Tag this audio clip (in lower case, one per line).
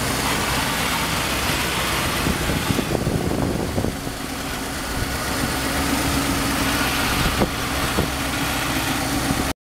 medium engine (mid frequency)
vehicle
idling
engine